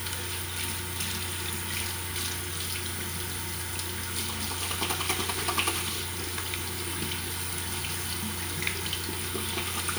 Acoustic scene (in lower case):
restroom